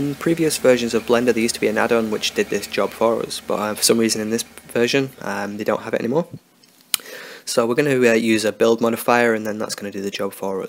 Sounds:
typing on typewriter

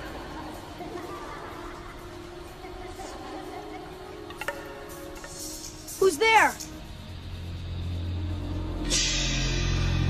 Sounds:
Music, Speech

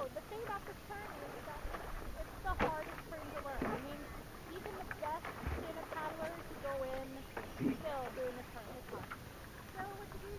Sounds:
Speech

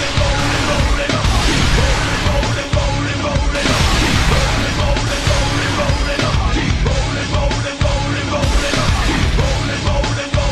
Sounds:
Music

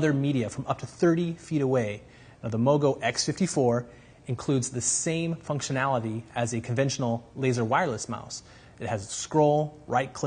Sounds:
Speech

